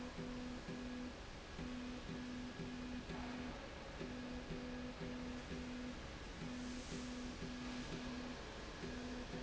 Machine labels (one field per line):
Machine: slide rail